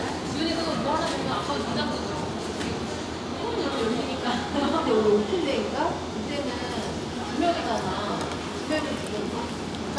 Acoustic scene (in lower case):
cafe